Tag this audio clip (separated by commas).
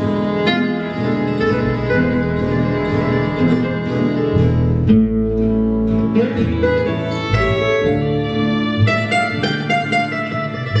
Music, inside a large room or hall, Musical instrument, Guitar, Plucked string instrument